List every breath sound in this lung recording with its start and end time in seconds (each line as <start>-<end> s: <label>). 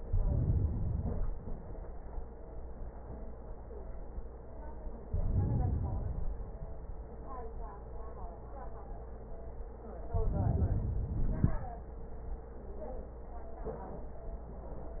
0.00-1.61 s: inhalation
5.05-6.54 s: inhalation
10.11-11.05 s: inhalation
11.04-11.89 s: exhalation